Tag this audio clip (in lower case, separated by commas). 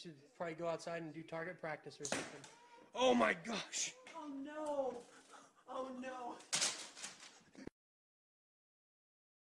arrow, speech